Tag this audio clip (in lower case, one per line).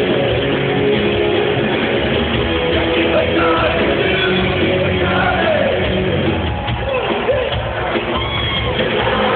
rock and roll
music